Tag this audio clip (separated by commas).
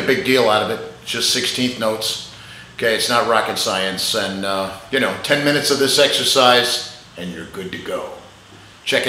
Speech